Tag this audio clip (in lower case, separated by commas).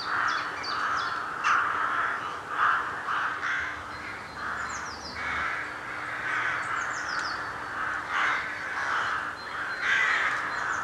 crow cawing